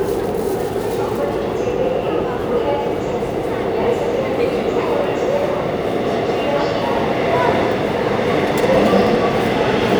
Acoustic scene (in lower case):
subway station